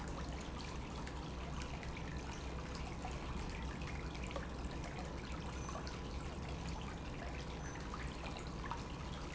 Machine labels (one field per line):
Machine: pump